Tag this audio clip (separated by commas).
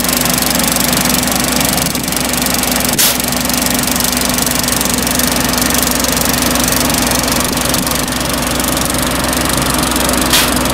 Spray